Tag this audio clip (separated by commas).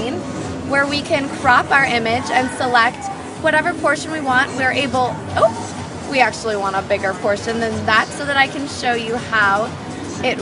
Speech